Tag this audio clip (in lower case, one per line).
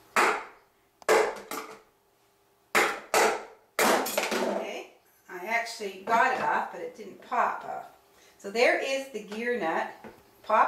speech
inside a small room